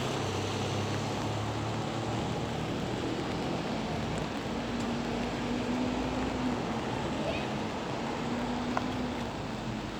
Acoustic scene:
street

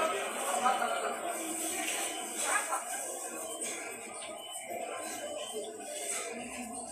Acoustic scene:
subway station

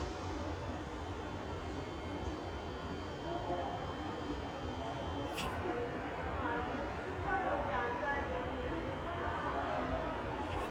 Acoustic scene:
subway station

